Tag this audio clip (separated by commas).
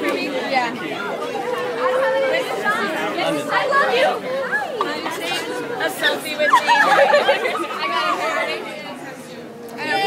Speech